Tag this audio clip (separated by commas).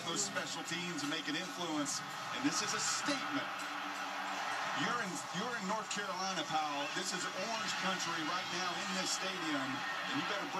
Speech